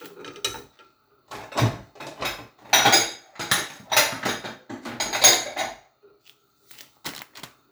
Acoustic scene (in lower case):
kitchen